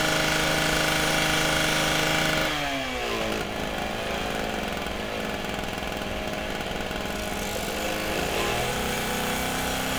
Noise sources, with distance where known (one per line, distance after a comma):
unidentified powered saw, near